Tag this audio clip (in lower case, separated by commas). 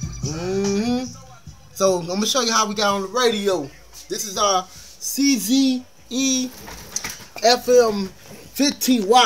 music, speech